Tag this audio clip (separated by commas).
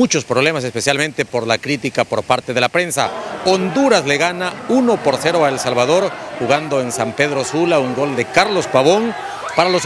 Speech